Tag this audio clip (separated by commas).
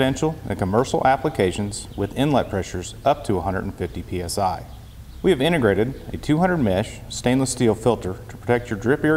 Speech